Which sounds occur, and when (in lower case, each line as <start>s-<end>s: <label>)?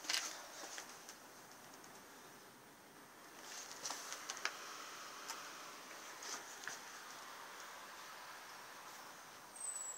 0.0s-9.9s: background noise
3.8s-4.0s: walk
5.3s-5.4s: generic impact sounds
7.6s-7.7s: tick
8.9s-9.0s: surface contact
9.6s-9.9s: mechanisms